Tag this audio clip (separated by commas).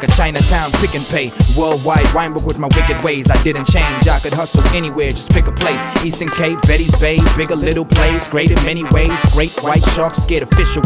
Soundtrack music, Music